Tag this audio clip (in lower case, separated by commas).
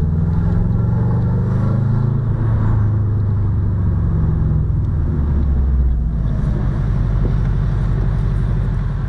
car, vehicle